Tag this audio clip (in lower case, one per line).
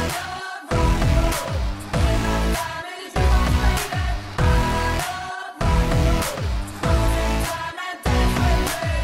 music